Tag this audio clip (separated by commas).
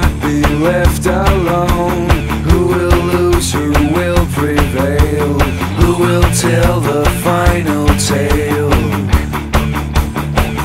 Music